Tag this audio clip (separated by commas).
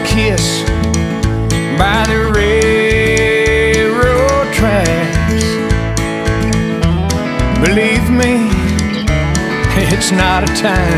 Music